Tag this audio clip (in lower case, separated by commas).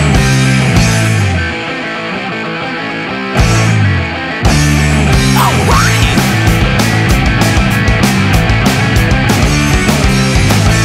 music, progressive rock, rock and roll, heavy metal